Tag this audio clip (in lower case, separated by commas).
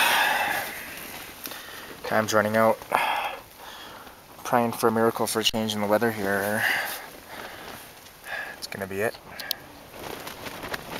speech